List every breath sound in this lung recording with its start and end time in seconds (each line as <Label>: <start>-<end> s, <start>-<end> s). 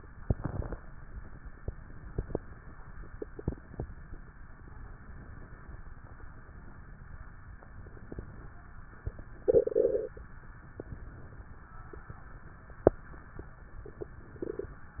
Inhalation: 1.63-2.95 s, 4.62-5.83 s, 7.60-8.64 s, 10.72-11.70 s, 13.79-14.78 s
Exhalation: 0.16-1.55 s, 3.03-4.54 s, 5.87-7.54 s, 8.85-10.11 s, 11.84-12.89 s